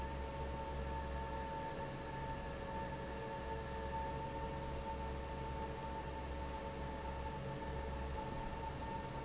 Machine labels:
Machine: fan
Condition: normal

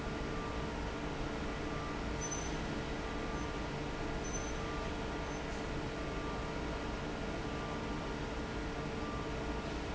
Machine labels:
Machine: fan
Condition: normal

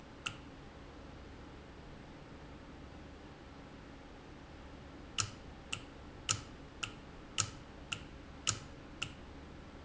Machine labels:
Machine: valve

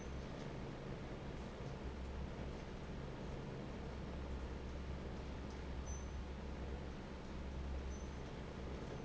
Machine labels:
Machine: fan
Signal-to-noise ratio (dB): 6 dB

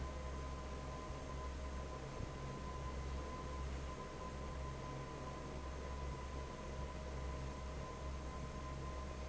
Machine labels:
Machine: fan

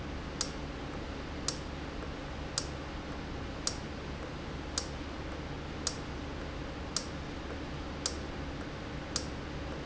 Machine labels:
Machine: valve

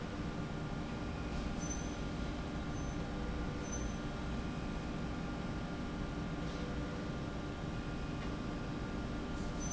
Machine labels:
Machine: slide rail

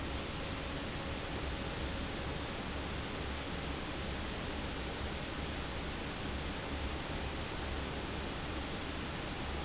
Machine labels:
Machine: fan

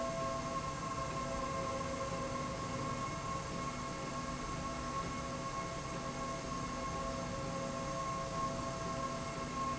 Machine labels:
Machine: slide rail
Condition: normal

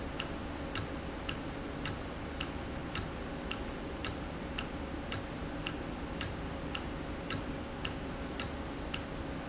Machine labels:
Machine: valve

